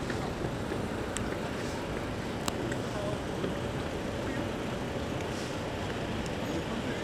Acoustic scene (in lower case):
street